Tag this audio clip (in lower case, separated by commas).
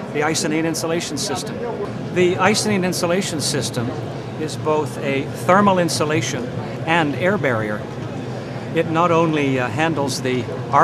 speech